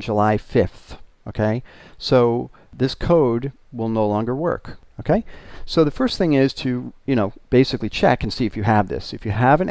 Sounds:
Speech

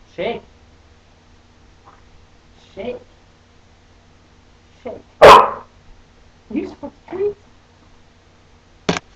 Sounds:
Dog, Bow-wow, Animal, Speech, pets

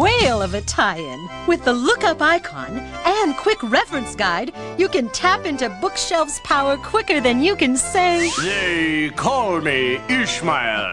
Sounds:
Music, Speech

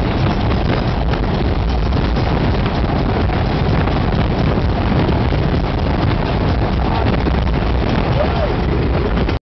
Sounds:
Speech

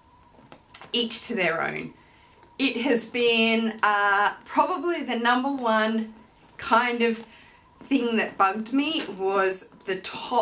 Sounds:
Speech

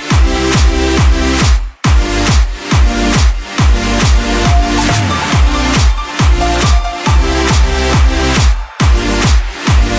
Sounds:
Music, Electronic dance music

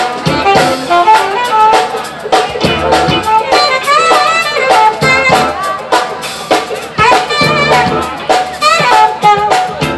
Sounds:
Music

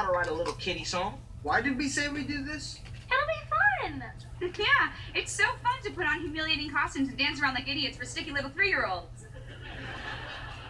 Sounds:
Speech

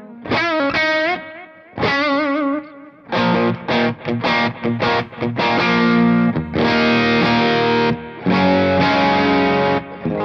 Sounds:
Music, Distortion

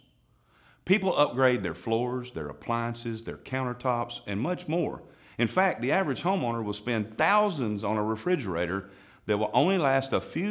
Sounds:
Speech

